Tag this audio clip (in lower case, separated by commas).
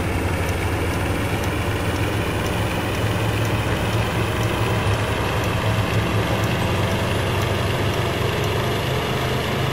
vehicle